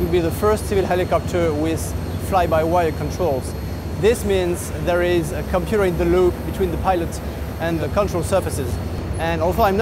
A man speaks while a whining occurs